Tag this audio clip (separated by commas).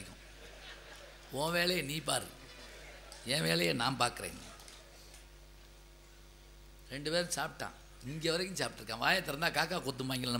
monologue, Speech, Male speech